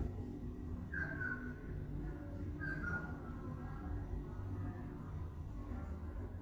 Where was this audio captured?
in an elevator